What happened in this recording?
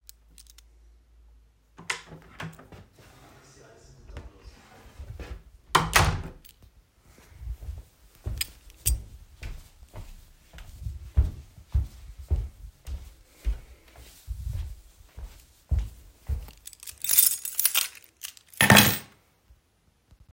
I opened the door, went in, closed the door, walked through the hallway and put my keys on the table.